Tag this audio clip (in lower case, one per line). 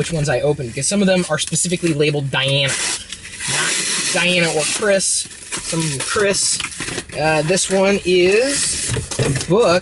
speech